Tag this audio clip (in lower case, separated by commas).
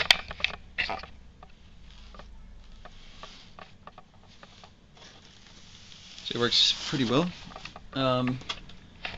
inside a small room, speech